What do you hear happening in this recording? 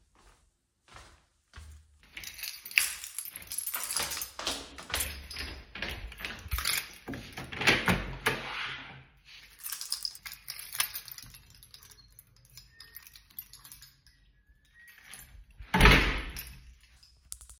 I started walking down the stairs, holding and dangling my keys. Then I opened the door and left it open for a few seconds before closing it, still holding my keys.